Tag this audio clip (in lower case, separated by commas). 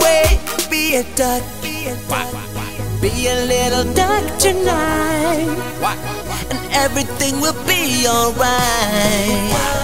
quack, music